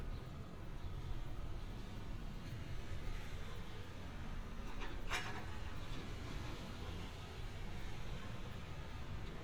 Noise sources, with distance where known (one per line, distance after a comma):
non-machinery impact